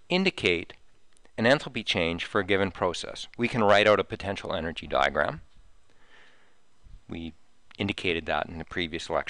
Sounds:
Speech

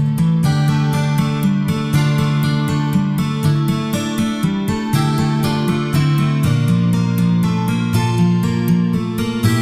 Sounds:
Guitar, Music, Musical instrument, Acoustic guitar, Plucked string instrument

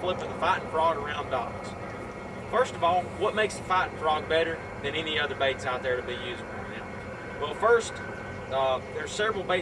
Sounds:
Speech

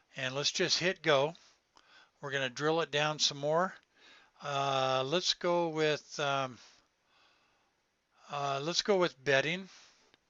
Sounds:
Speech

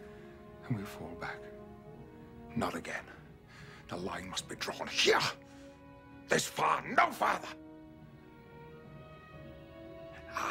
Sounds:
man speaking, Music, Speech, Narration

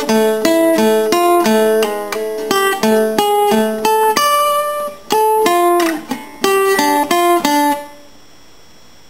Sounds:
Music, Musical instrument, Plucked string instrument, Guitar

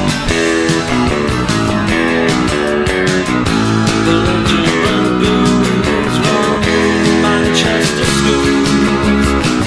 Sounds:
Musical instrument, Guitar, Plucked string instrument, playing bass guitar, Bass guitar, Independent music

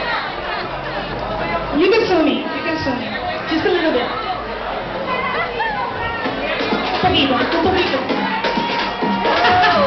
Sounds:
Music, Speech

